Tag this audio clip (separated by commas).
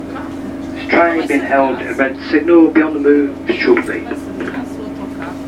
Vehicle, Rail transport, underground, Human voice